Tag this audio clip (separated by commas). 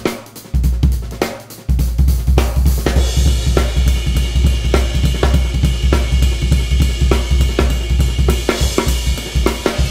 Bass drum, Drum kit, Musical instrument, Music, Hi-hat, Percussion, Cymbal, Snare drum, Rimshot, Drum